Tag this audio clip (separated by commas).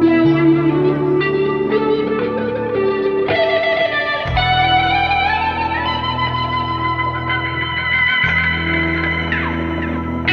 Music, Electronic music